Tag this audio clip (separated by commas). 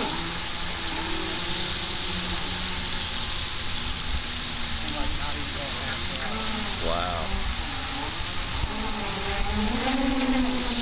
Vehicle, Speech, Motorboat